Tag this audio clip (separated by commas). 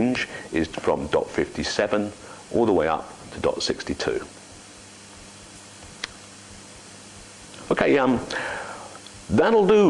Speech